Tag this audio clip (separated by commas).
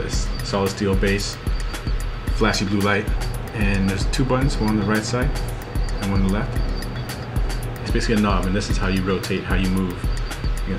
Music, Speech